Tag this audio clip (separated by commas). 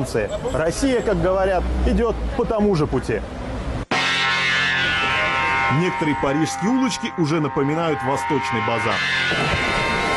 Music, Speech